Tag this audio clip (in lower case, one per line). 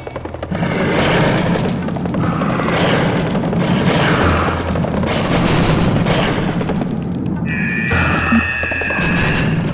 boom
music